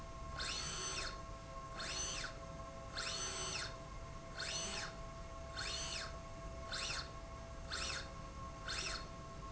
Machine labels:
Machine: slide rail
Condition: normal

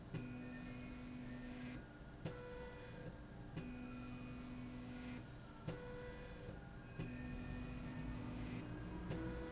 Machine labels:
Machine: slide rail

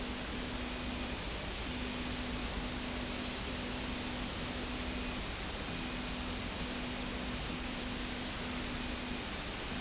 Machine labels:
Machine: slide rail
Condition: normal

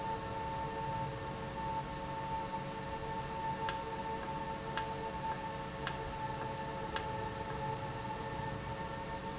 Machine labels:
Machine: valve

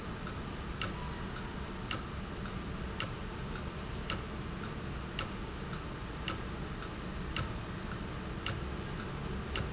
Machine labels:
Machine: valve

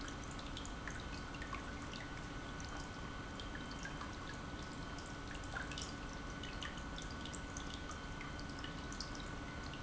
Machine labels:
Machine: pump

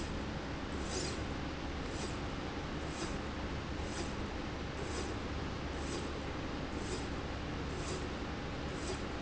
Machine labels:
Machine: slide rail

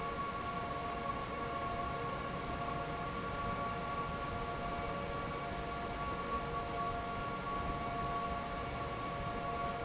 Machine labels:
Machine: fan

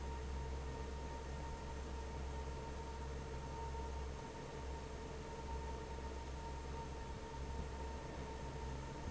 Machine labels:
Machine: fan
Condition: normal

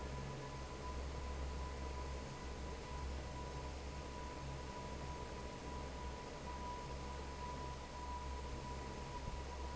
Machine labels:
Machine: fan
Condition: normal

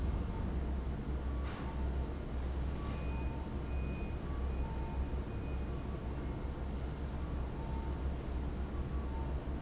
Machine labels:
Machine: fan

